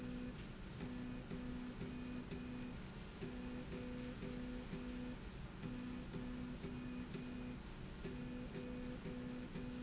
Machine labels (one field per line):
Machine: slide rail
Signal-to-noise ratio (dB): 6 dB